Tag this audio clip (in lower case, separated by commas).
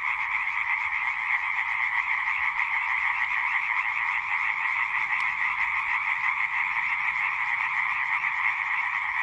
frog croaking